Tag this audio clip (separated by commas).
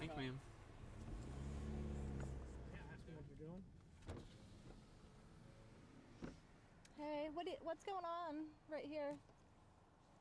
Speech